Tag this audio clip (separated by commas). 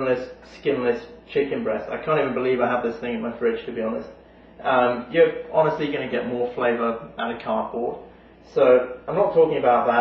Speech